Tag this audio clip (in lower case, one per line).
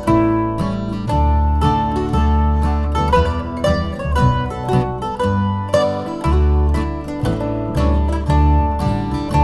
playing mandolin